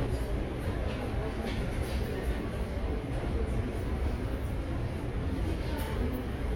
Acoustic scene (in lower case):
subway station